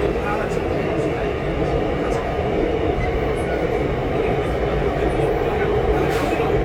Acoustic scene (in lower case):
subway train